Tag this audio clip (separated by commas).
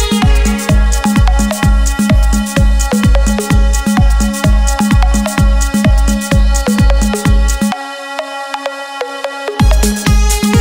Dubstep, Music, Electronic music, Funk, Techno, Electronica, Trance music, Electronic dance music, Dance music